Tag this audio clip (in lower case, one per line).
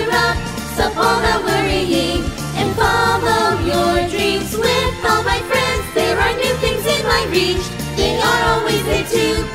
jingle (music)